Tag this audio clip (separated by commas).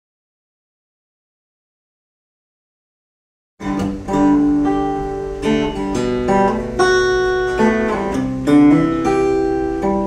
Guitar, Musical instrument, Plucked string instrument, Strum, Music